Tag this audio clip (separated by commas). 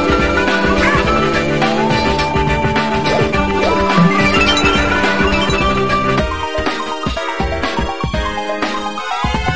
Music